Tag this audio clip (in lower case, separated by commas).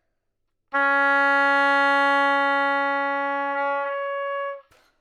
musical instrument, music, woodwind instrument